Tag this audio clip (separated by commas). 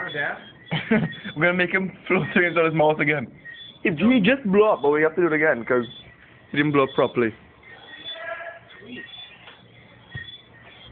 Speech